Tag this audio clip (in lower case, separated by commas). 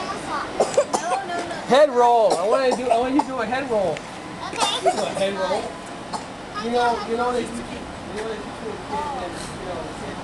speech, outside, urban or man-made, kid speaking